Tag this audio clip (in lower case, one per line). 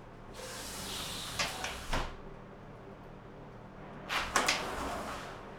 door
domestic sounds
sliding door